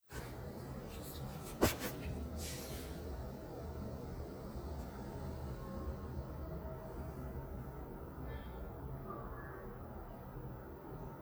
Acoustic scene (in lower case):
elevator